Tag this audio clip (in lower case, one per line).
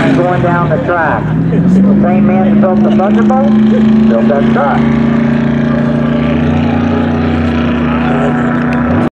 vehicle
car